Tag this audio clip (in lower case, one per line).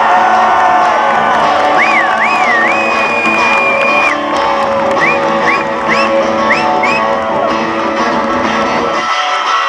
plucked string instrument
guitar
musical instrument
strum
electric guitar
music